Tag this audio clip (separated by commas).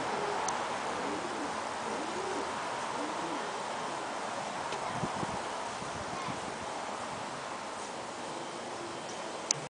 Bird, dove, outside, rural or natural